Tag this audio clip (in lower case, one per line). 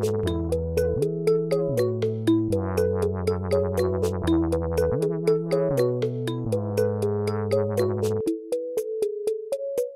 synthesizer
music